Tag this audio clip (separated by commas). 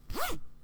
Domestic sounds, Zipper (clothing)